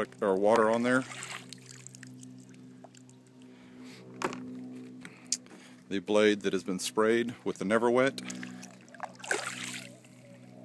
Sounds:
Speech

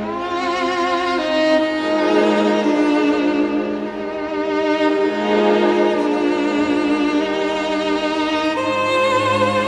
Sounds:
Musical instrument, Violin, Music

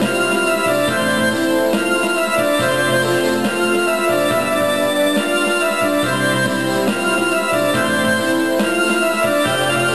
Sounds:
Traditional music, Theme music, Music

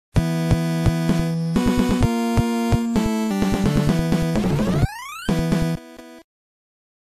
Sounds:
Theme music, Music

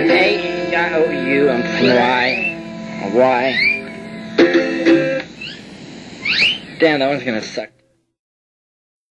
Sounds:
Speech, Music

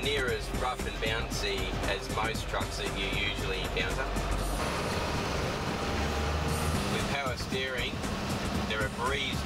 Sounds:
Speech, Music, Vehicle, Truck

